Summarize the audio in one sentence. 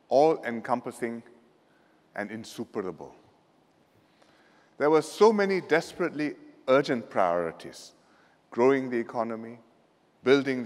A man delivers a speech